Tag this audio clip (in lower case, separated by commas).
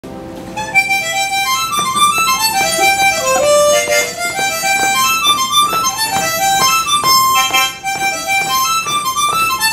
playing harmonica